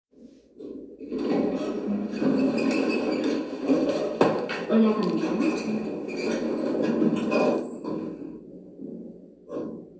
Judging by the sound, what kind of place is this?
elevator